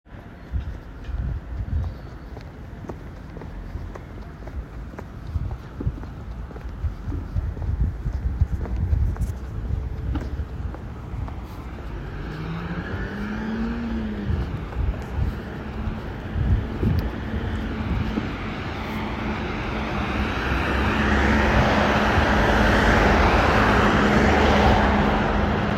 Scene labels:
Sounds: footsteps

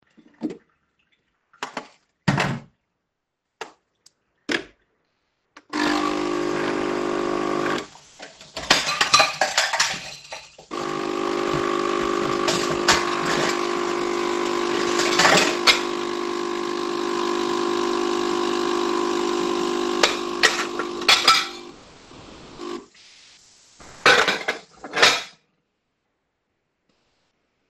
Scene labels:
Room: kitchen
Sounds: running water, door, light switch, coffee machine, cutlery and dishes

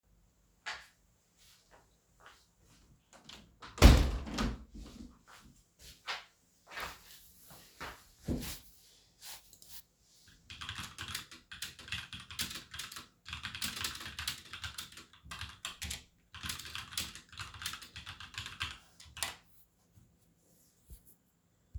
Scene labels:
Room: bedroom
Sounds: footsteps, window, keyboard typing

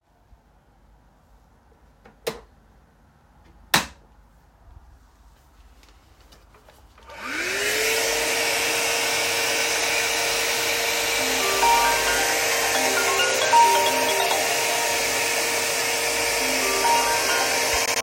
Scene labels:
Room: living room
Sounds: light switch, vacuum cleaner, phone ringing

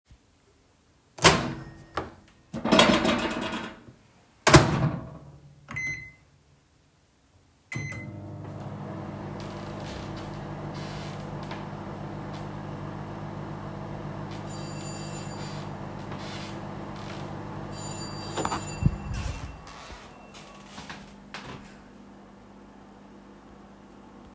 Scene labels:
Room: kitchen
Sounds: microwave, footsteps, bell ringing

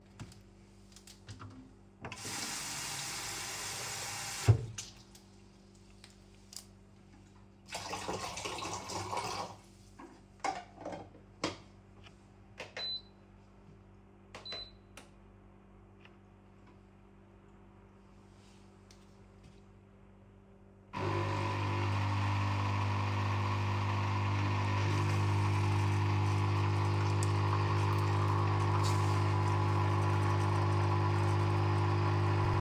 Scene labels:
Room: kitchen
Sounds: running water, coffee machine

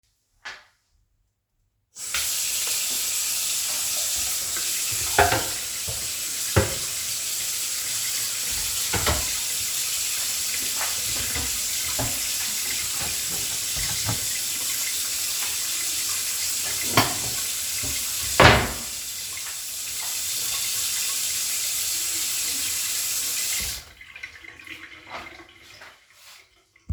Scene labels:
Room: kitchen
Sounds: running water, cutlery and dishes, wardrobe or drawer

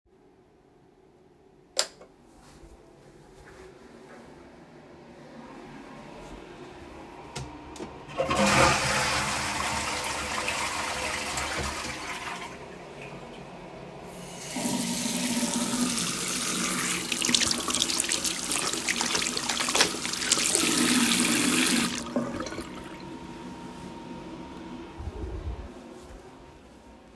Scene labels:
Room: bathroom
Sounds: light switch, toilet flushing, running water

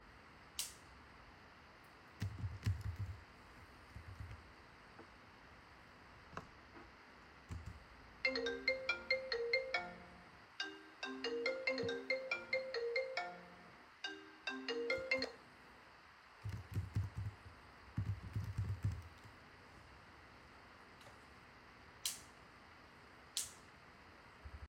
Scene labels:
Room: office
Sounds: light switch, phone ringing

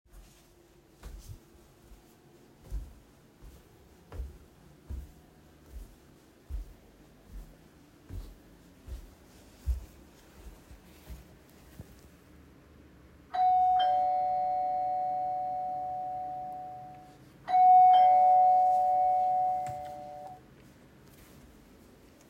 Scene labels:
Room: hallway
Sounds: footsteps, bell ringing

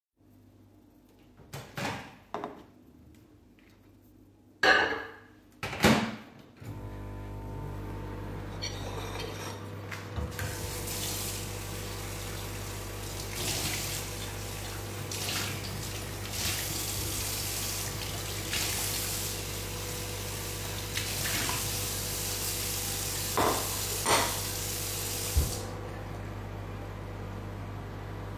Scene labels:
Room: kitchen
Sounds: microwave, cutlery and dishes, running water

